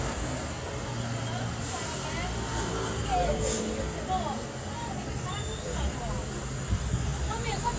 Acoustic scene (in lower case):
street